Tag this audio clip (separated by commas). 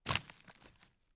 Crack